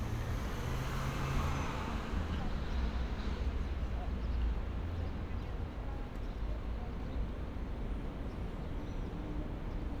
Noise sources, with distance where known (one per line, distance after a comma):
engine of unclear size, far
person or small group talking